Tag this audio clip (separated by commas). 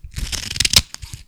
Domestic sounds, Scissors